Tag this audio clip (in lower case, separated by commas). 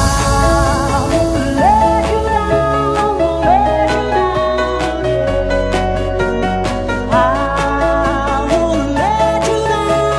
music